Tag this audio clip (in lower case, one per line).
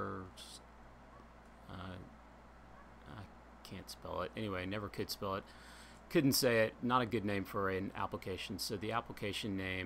speech